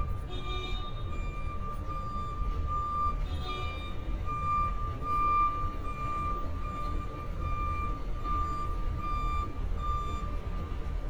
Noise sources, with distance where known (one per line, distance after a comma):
unidentified alert signal, near